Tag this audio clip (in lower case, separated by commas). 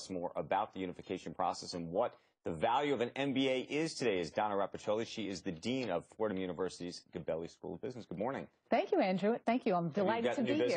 speech